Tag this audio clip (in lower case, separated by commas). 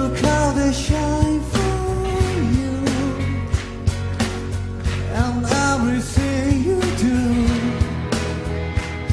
male singing, music